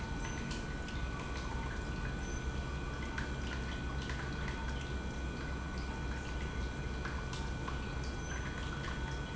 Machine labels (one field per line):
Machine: pump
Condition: normal